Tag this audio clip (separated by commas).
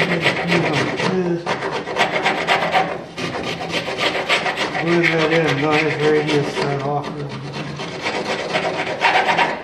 Rub, Filing (rasp), Wood